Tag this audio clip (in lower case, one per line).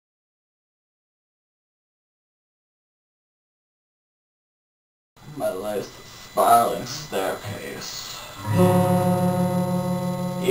music
speech